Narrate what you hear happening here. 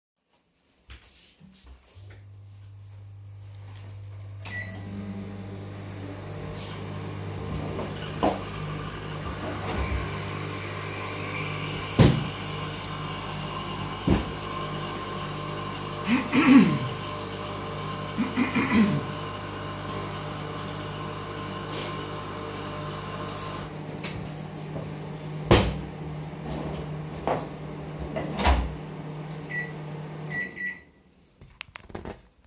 Shuffling, the person walks over to the coffee maker and switches it on, then starts the microwave as well. They sit down on the kitchen chair and wait, clearing their throat and sniffling in the meantime. The coffee machine stops, they get up, and the chair can be heard scraping. They open the drawer, but it is not audible what they take out, then they stop the microwave with a few button presses.